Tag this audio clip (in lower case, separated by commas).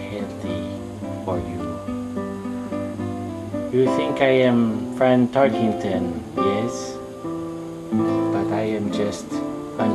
speech, music